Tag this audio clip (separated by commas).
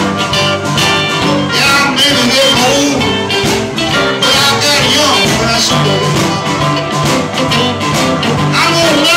Blues, Music